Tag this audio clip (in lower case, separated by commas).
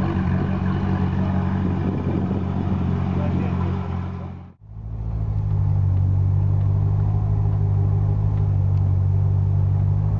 vehicle, outside, urban or man-made, speech, motor vehicle (road), car